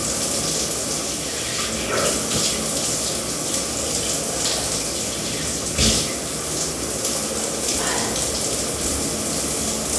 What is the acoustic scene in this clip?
restroom